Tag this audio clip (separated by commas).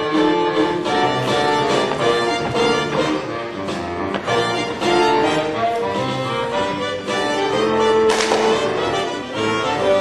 Music